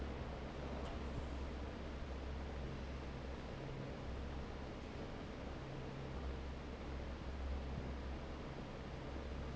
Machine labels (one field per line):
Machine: fan